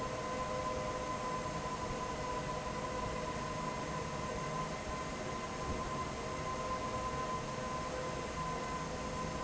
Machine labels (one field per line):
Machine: fan